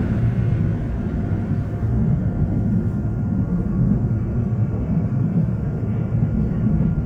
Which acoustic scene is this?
subway train